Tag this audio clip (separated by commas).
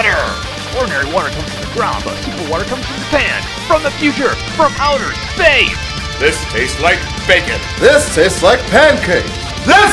Speech, Music